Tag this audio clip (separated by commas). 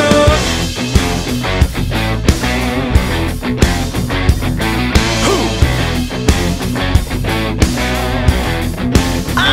Grunge